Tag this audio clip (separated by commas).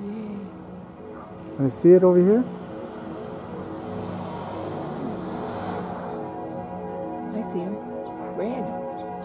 Music, Speech